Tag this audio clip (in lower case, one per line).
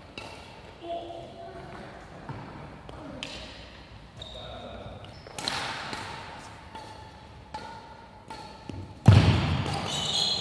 playing badminton